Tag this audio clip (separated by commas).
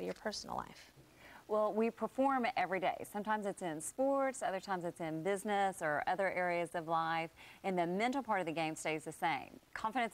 Speech